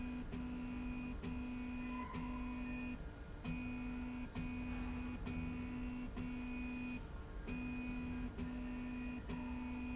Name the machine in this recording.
slide rail